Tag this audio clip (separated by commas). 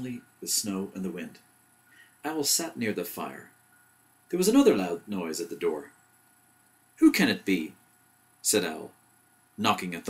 Speech